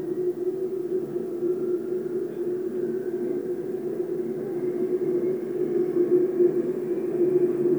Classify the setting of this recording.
subway train